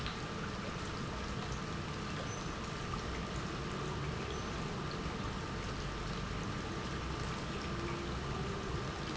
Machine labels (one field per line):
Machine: pump